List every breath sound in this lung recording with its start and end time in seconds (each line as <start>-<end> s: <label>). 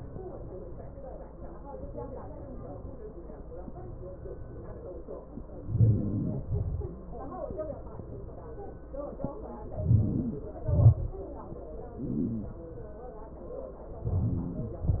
5.29-6.28 s: inhalation
6.34-6.91 s: exhalation
9.39-10.27 s: inhalation
10.30-11.04 s: exhalation
13.79-14.51 s: inhalation
14.53-15.00 s: exhalation